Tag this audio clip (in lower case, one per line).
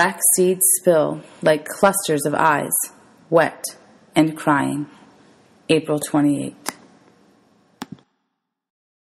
speech